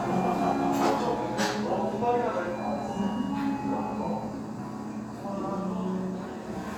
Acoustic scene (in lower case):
restaurant